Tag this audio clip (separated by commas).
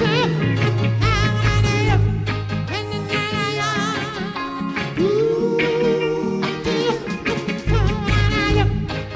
Ska, Music